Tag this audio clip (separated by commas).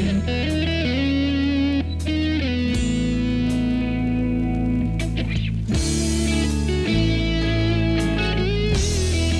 Music